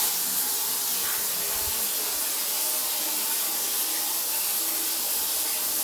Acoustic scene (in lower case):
restroom